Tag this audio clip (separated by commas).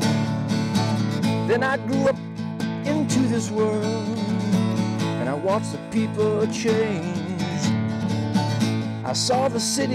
Music